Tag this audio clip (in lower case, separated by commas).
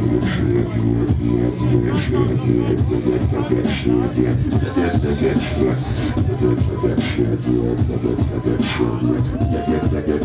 electronic music, music, speech, beatboxing